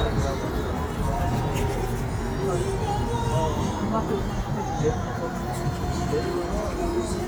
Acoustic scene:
street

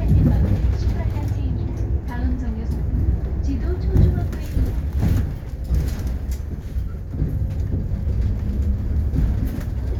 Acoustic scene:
bus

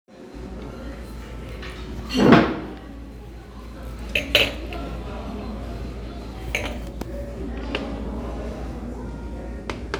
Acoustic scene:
restaurant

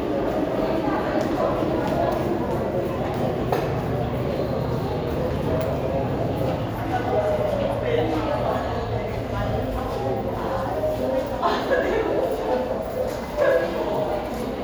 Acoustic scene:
subway station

